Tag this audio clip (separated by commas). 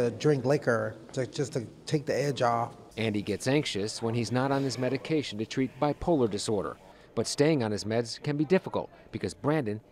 Speech